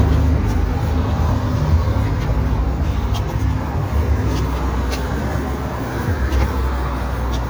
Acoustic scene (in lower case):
street